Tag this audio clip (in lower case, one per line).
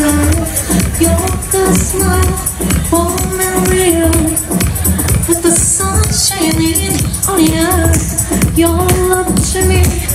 music
singing